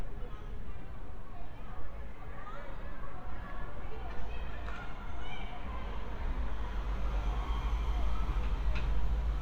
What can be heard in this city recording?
person or small group shouting